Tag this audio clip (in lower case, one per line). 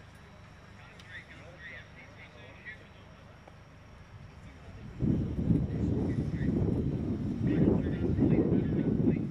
speech